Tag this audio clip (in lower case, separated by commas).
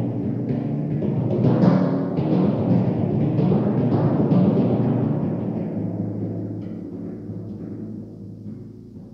playing timpani